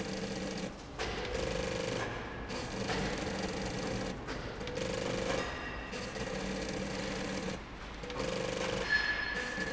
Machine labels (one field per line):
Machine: slide rail